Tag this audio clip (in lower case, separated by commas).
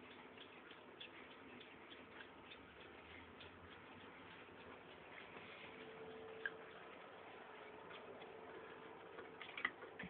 tick-tock